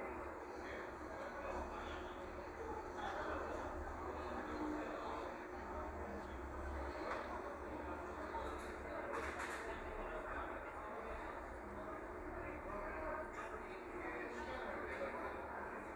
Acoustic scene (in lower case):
cafe